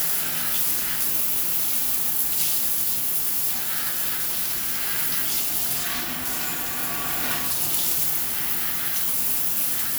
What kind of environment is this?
restroom